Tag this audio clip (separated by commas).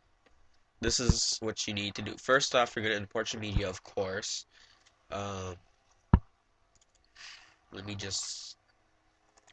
Speech